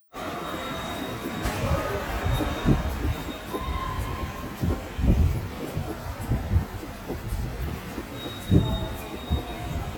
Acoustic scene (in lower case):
subway station